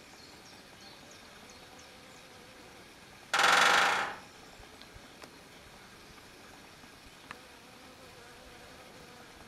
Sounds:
woodpecker pecking tree

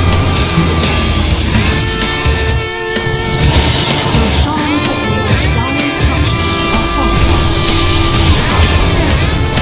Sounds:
heavy metal

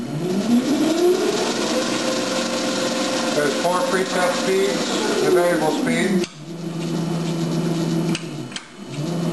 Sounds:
speech

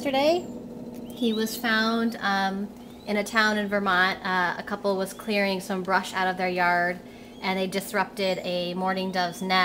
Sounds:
animal, speech, bird, coo

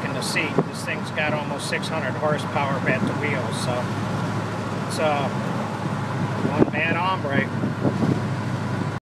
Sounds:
speech

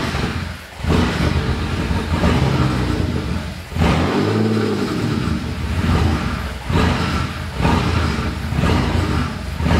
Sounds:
accelerating, vehicle, engine, idling, medium engine (mid frequency), car

